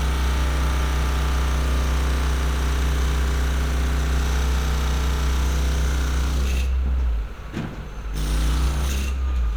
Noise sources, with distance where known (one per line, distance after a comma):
rock drill